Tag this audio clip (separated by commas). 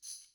Music, Musical instrument, Percussion, Tambourine